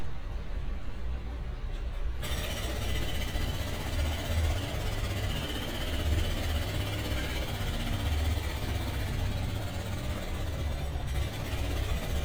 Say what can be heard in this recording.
jackhammer